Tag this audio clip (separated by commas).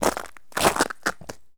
footsteps